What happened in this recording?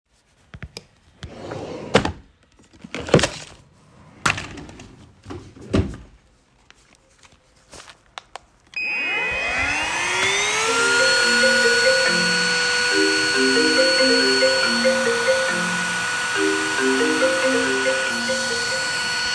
I open the drawer and take out the vacuum cleaner and while I am vacuuming my phone starts ringing.